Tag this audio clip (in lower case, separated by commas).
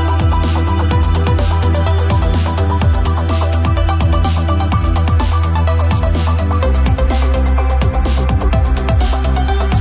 music